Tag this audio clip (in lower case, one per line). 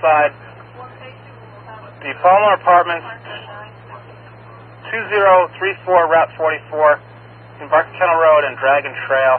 vehicle
speech